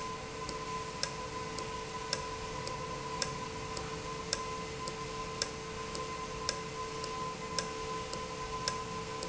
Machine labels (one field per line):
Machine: valve